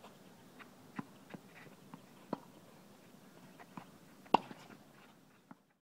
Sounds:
playing tennis

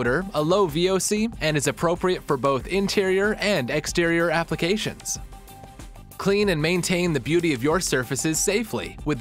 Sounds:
music, speech

